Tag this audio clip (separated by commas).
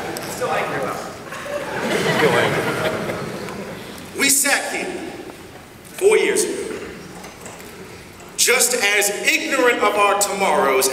Speech, Male speech, monologue